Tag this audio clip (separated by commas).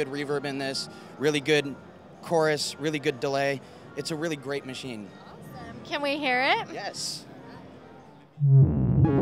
Musical instrument, Music, Speech